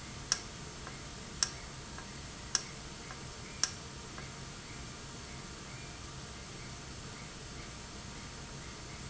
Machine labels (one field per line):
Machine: valve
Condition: normal